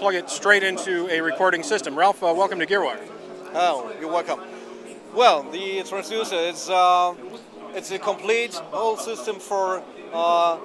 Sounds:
Speech, Music

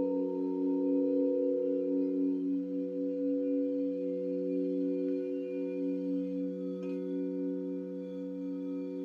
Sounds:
Music, Singing bowl

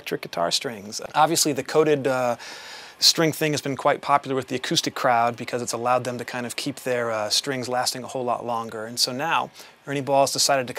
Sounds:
Speech

